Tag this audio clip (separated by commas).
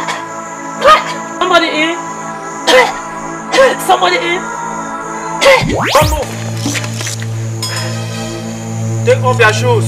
Music, Speech, Scary music